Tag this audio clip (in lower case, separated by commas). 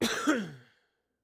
respiratory sounds, cough